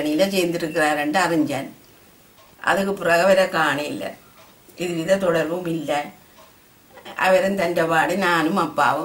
A woman gives a speech